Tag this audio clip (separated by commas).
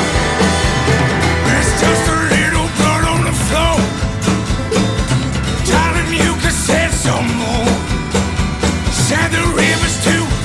Music, Exciting music